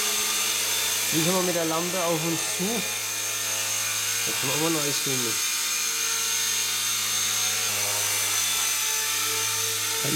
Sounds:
aircraft
speech

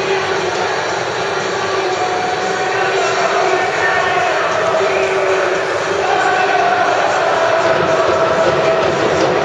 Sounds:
chant
crowd
people crowd

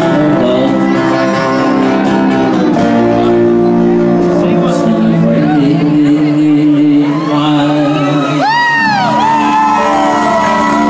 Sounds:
inside a public space
music
singing
speech
shout

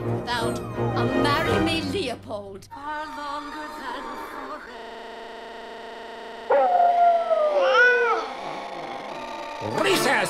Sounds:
inside a small room
music
speech

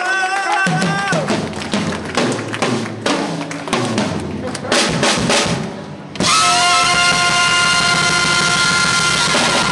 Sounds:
bass drum
drum roll
percussion
rimshot
snare drum
drum kit
drum

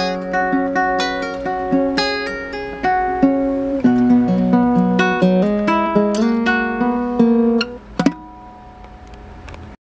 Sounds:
music

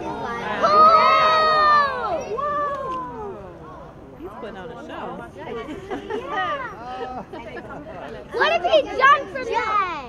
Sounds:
speech

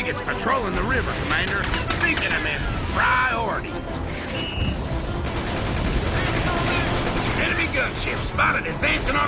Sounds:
music
speech

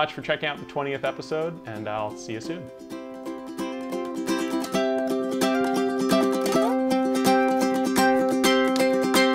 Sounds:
playing ukulele

